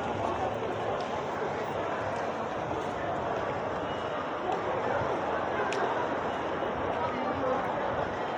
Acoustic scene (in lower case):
crowded indoor space